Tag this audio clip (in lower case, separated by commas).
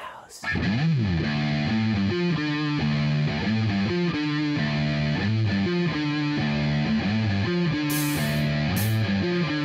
music